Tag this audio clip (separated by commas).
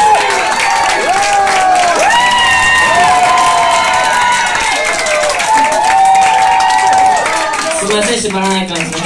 Speech